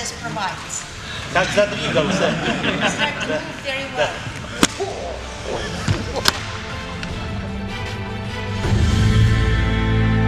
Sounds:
inside a large room or hall, speech, music

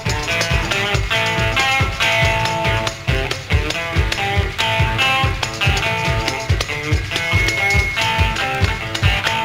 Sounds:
guitar, music

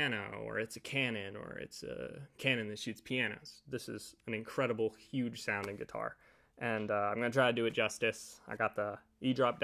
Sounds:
speech

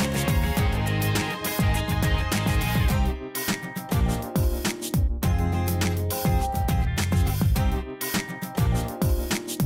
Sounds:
music

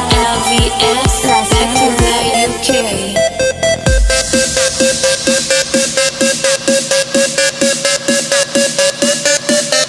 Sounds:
singing, music, electronic dance music

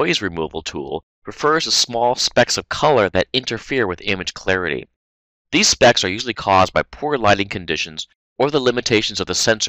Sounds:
speech

